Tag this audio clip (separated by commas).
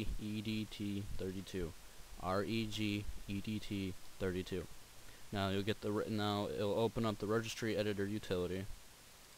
Speech